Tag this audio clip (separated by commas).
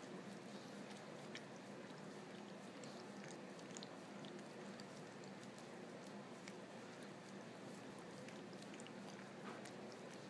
Domestic animals, Animal